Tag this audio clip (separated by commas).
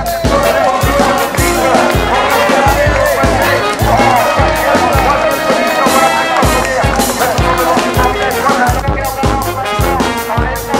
outside, urban or man-made, Music, Speech